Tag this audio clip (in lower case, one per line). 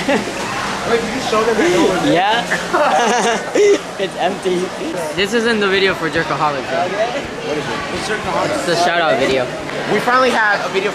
speech